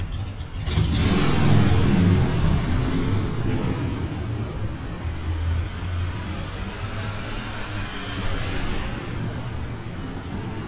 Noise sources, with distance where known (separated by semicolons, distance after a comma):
medium-sounding engine, near; large-sounding engine, near